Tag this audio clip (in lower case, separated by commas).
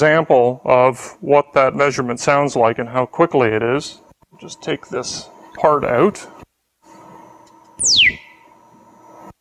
speech, inside a large room or hall